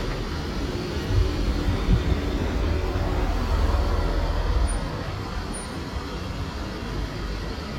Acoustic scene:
residential area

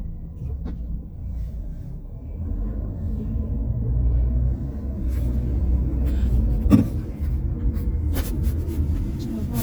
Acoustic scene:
car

